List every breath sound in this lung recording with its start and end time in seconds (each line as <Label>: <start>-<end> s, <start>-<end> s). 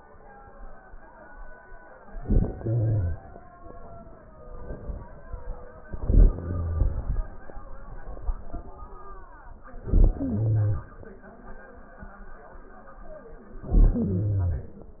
Inhalation: 2.08-3.29 s, 5.86-7.53 s, 9.76-10.97 s, 13.57-14.90 s
Crackles: 2.08-3.29 s, 5.86-7.53 s, 9.76-10.97 s, 13.57-14.90 s